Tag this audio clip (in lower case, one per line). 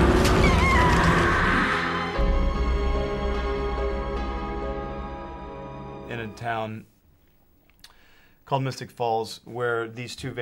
speech
music